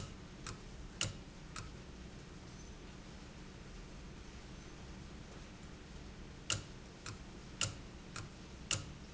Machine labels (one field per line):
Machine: valve